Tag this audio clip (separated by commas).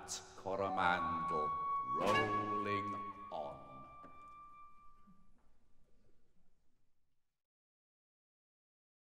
Speech, Music